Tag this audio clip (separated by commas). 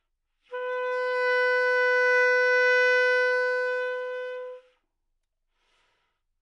Music, Wind instrument, Musical instrument